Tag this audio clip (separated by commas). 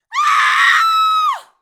Screaming, Human voice